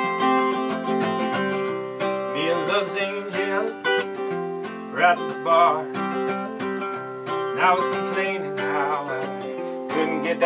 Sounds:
music

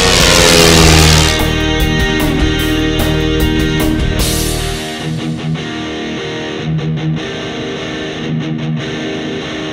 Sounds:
vehicle, music, heavy metal, airscrew

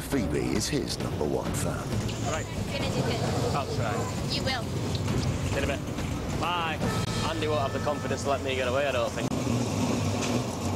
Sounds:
speech, music

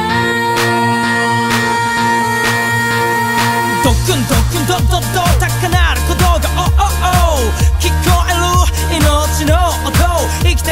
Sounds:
music

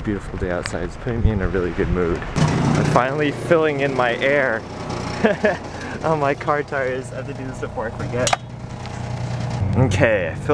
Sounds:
outside, urban or man-made, speech

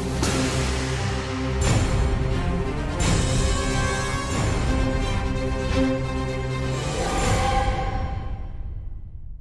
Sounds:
music

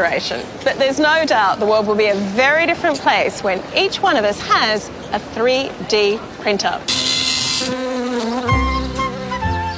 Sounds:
music, speech

